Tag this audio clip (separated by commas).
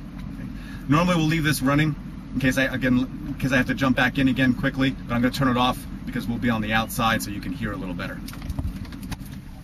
Speech, Vehicle, outside, rural or natural